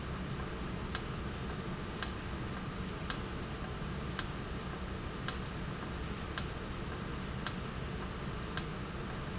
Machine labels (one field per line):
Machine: valve